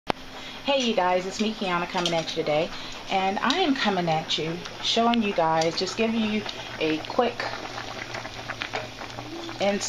A woman is speaking and dishes are clanging together and water boils